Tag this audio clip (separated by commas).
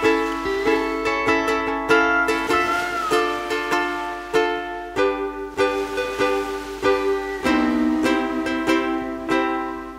Slosh, Music